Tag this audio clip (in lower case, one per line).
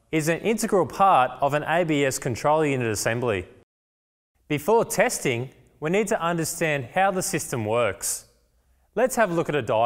speech